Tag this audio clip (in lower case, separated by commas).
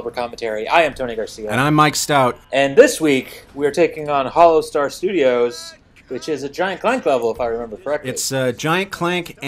speech